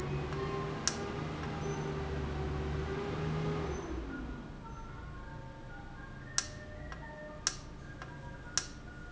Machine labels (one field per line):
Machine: valve